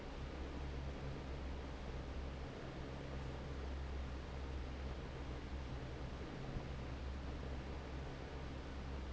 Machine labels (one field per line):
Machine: fan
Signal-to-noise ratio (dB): 6 dB